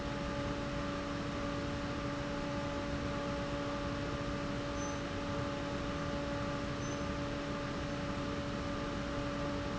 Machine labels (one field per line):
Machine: fan